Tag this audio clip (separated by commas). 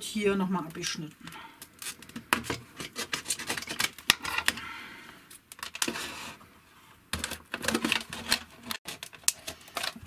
plastic bottle crushing